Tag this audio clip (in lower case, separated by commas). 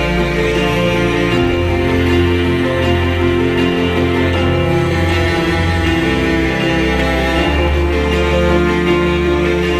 music